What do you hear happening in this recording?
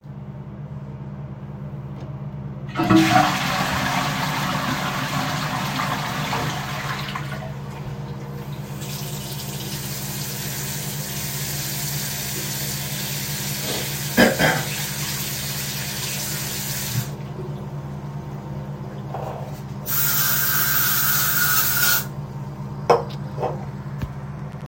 I flushed the toilet and then went to wash my hands with running water. I coughed during the process. At the end I used a spray.